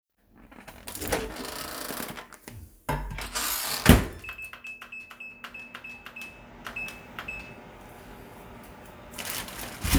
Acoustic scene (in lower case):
kitchen